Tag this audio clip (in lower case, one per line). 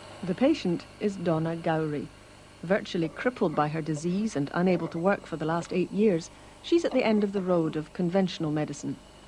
speech